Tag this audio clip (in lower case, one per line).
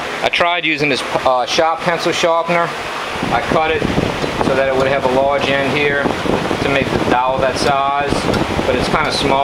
speech